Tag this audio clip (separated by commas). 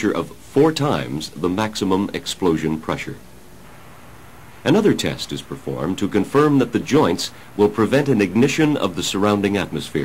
Speech